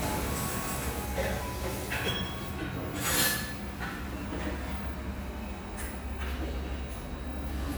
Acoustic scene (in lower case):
cafe